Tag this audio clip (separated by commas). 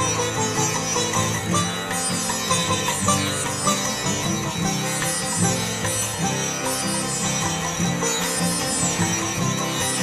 playing sitar